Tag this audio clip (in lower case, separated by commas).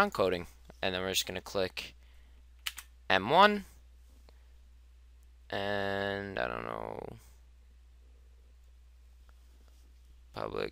clicking, speech